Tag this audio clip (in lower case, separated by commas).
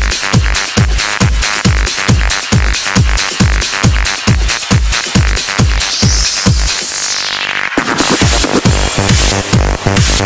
trance music, techno